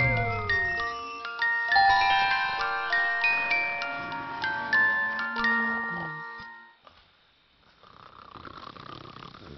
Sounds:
inside a large room or hall, Music, Glockenspiel

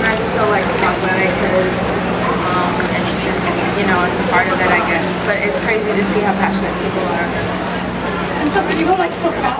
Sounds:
Speech

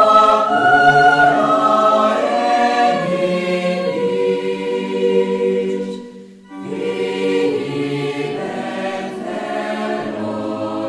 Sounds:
Bowed string instrument

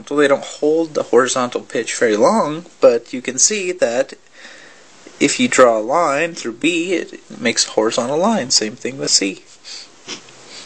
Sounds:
Speech

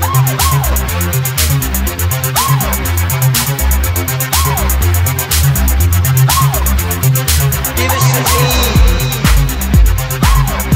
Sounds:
Electronic music, Music

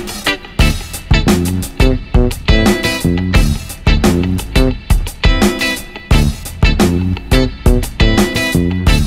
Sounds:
Music

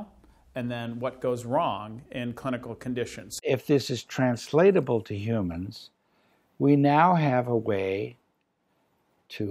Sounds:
Speech

